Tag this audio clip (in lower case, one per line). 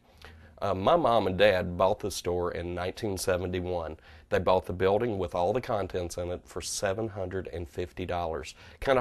speech